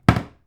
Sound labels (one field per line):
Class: cupboard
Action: closing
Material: wooden